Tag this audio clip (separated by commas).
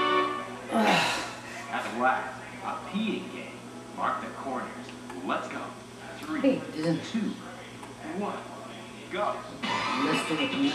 inside a small room, Speech, Music